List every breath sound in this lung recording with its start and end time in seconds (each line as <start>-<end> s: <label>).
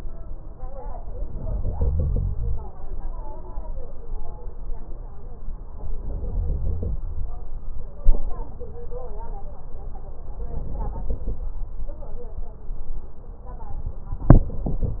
1.26-2.62 s: inhalation
5.92-6.97 s: inhalation
10.40-11.46 s: inhalation